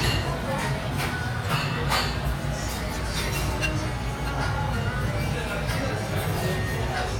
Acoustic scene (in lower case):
restaurant